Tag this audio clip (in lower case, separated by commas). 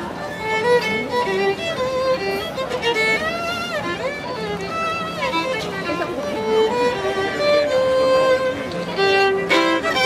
violin, speech, music, musical instrument